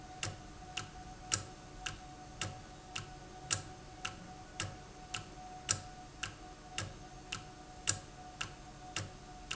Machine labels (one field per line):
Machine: valve